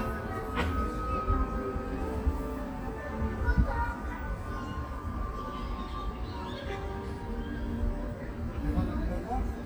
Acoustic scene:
park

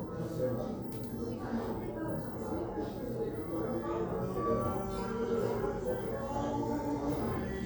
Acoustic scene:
crowded indoor space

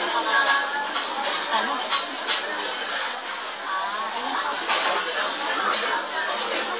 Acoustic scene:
restaurant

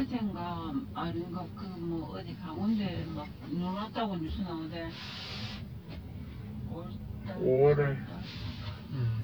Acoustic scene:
car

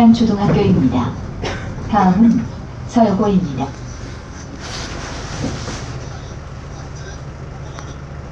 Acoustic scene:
bus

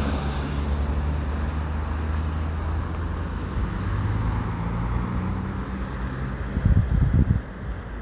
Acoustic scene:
street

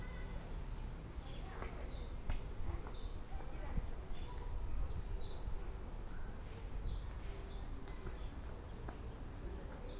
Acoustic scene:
park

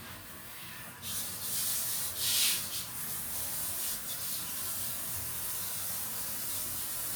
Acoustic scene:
restroom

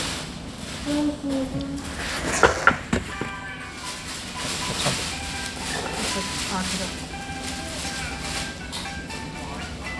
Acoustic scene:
restaurant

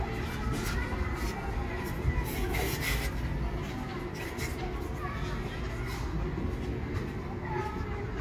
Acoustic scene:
residential area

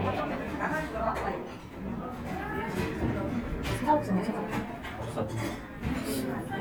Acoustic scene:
crowded indoor space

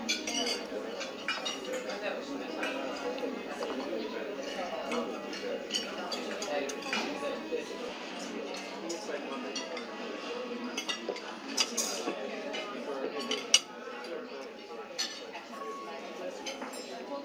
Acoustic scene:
restaurant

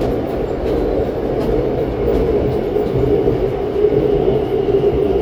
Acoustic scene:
subway train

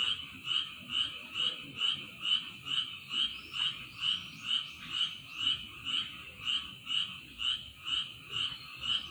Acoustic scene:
park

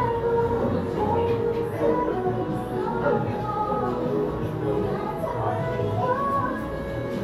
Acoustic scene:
cafe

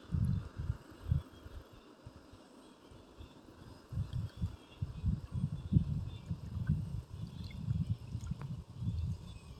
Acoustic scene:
park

